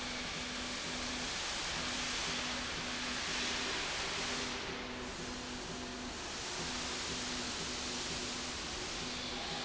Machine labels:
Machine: slide rail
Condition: normal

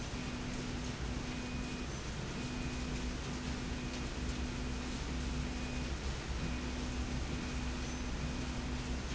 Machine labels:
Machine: slide rail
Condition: normal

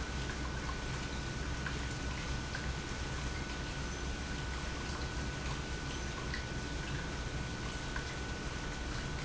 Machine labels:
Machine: pump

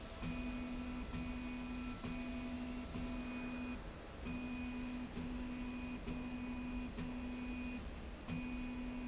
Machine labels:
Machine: slide rail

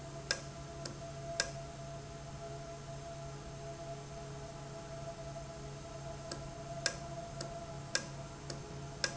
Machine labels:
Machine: valve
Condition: normal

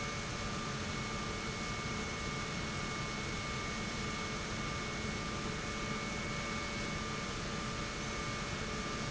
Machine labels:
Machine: pump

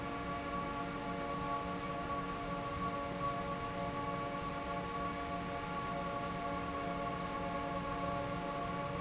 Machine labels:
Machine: fan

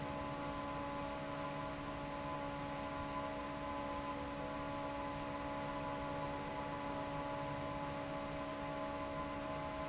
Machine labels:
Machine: fan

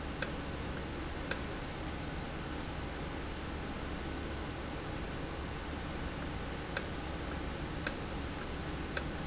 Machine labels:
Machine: valve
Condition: normal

